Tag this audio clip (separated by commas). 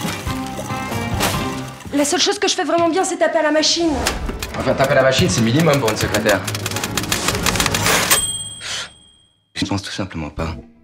typing on typewriter